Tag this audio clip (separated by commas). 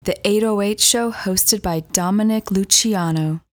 Female speech, Speech, Human voice